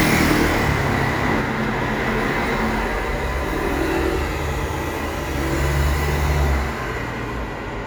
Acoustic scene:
street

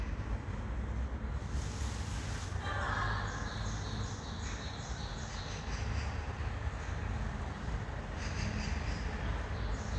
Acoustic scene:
elevator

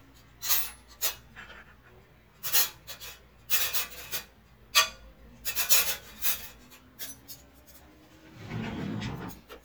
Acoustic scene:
kitchen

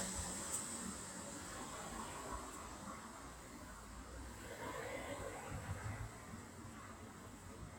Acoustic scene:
street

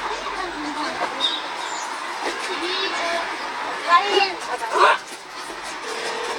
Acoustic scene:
park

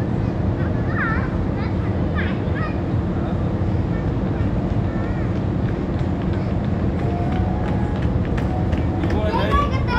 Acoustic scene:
park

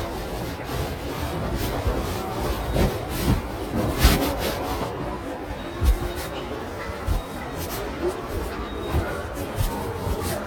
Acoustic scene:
subway station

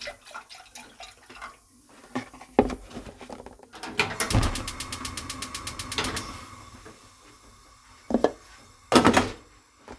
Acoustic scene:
kitchen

